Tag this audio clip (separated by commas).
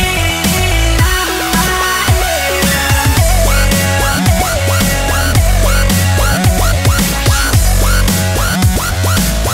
Dubstep, Music, Electronic music